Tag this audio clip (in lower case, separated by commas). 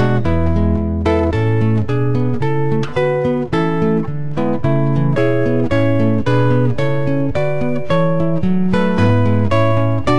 music, musical instrument, electric guitar, guitar, plucked string instrument